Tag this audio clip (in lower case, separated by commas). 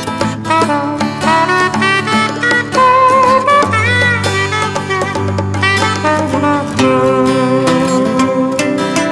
pizzicato, cello